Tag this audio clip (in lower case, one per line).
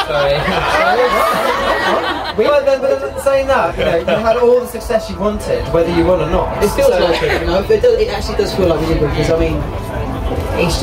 speech